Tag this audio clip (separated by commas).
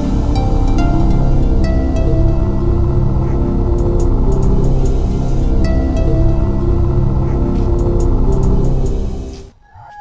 Music